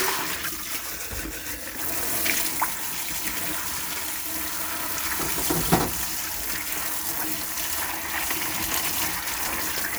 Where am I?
in a kitchen